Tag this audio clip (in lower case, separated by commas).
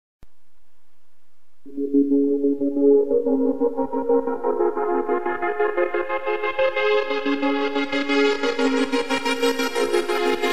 music